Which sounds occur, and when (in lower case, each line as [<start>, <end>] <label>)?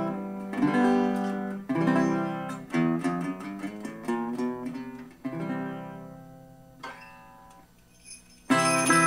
[0.00, 9.05] music